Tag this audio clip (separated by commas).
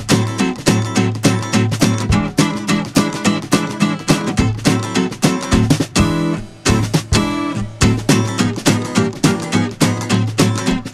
Music